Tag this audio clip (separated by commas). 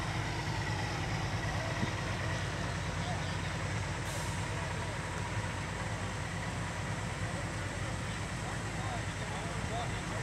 Speech, Vehicle